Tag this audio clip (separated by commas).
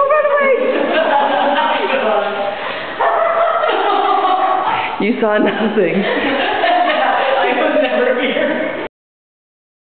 Bow-wow, Speech, pets, Animal, Dog